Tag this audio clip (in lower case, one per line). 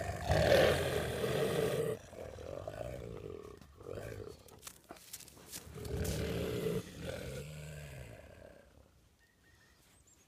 dog growling